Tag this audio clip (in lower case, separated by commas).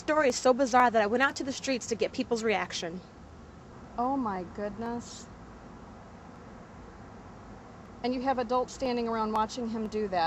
speech